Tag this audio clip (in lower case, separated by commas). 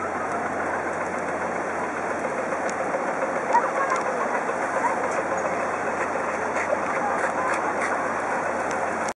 dove cooing, bird, dove, outside, urban or man-made